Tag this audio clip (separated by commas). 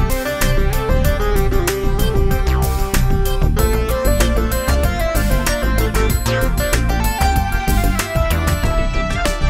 Music